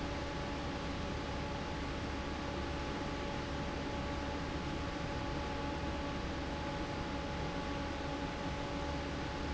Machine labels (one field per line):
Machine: fan